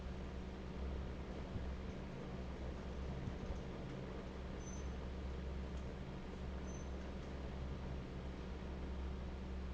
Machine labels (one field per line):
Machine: fan